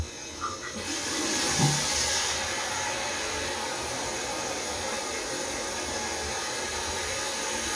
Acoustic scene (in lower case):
restroom